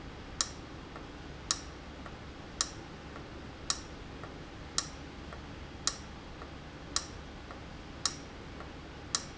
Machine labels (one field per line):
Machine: valve